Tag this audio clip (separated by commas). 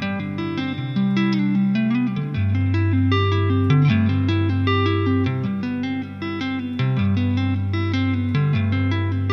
tapping guitar